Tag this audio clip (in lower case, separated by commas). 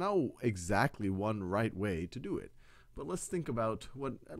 speech